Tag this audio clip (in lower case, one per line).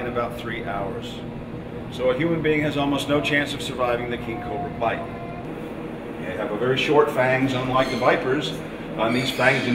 speech
outside, rural or natural